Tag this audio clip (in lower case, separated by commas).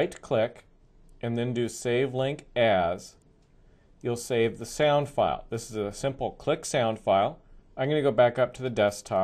speech